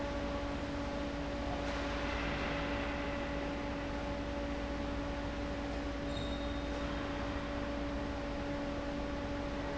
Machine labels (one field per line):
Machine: fan